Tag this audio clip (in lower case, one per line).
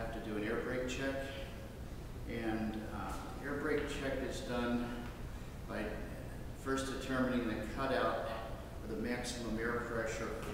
speech